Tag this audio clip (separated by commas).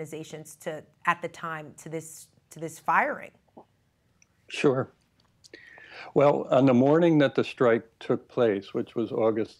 Speech